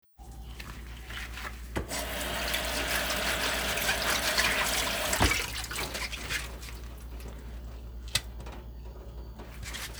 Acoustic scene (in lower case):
kitchen